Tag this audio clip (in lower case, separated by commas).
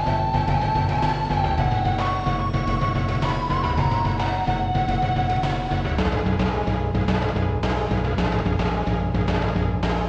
rhythm and blues, funk